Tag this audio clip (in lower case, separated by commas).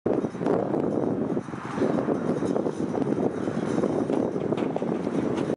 wind, wind noise (microphone)